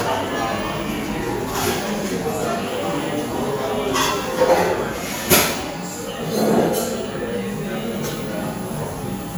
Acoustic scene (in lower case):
cafe